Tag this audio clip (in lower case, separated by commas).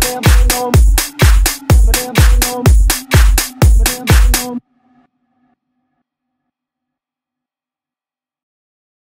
rock music, music